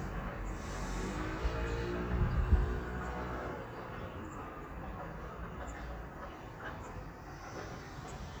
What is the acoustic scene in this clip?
residential area